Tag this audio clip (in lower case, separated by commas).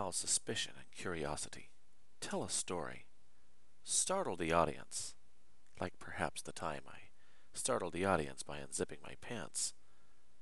speech, man speaking, speech synthesizer, monologue